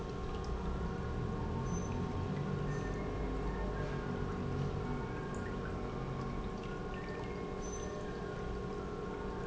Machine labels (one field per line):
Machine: pump